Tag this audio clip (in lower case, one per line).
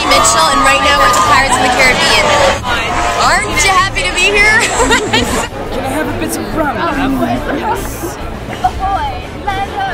speech
music